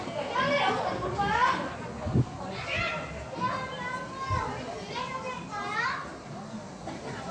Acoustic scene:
park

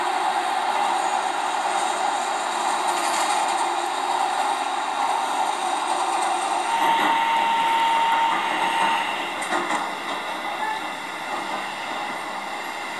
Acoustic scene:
subway train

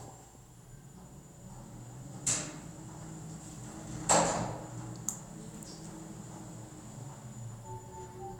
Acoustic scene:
elevator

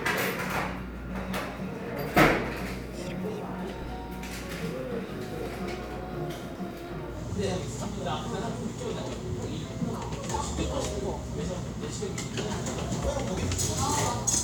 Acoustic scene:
cafe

